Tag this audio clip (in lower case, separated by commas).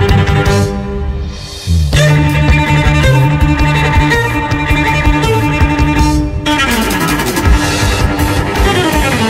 cello, music, musical instrument